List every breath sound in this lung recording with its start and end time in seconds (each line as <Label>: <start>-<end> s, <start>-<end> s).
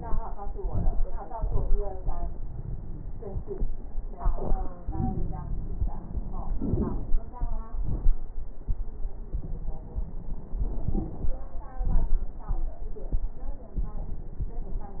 Inhalation: 4.88-6.54 s
Exhalation: 6.55-7.16 s
Crackles: 4.88-6.54 s, 6.55-7.16 s